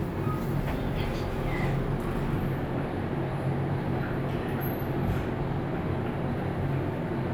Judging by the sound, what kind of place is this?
elevator